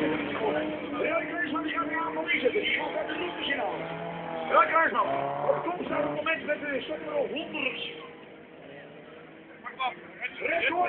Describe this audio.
Cars race outdoors, a voice narrates the action over a loudspeaker, engines roar throughout